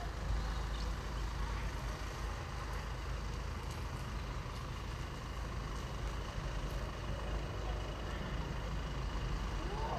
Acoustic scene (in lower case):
residential area